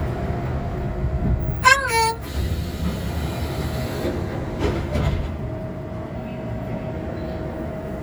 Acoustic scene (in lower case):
subway train